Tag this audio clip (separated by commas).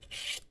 home sounds, Cutlery